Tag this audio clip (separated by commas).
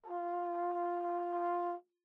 Brass instrument, Music, Musical instrument